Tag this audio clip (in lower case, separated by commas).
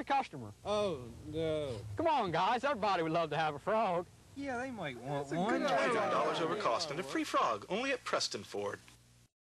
speech